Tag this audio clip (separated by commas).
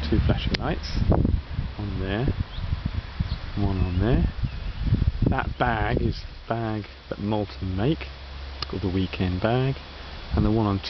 Speech